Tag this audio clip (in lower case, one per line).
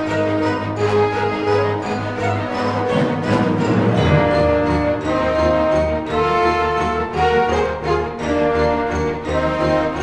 music